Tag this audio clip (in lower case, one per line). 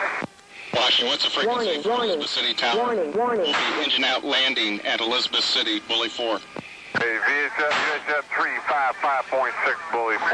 speech